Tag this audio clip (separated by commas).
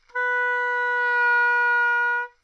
Musical instrument, Music, woodwind instrument